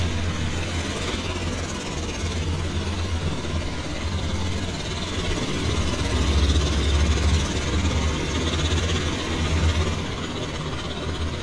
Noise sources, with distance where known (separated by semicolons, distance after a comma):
jackhammer, near